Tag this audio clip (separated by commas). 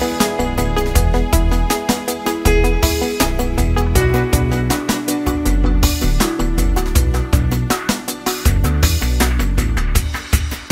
Music